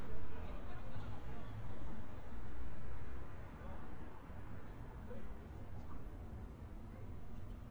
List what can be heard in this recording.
unidentified human voice